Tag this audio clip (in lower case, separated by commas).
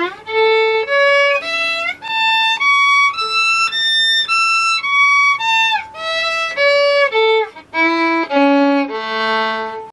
music, musical instrument, fiddle